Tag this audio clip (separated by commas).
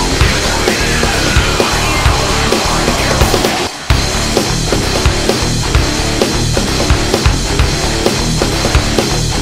Music, Techno